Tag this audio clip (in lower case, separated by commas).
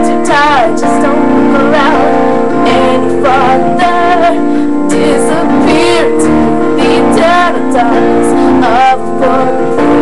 female singing, music